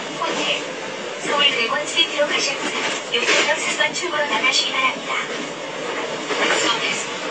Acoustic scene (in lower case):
subway train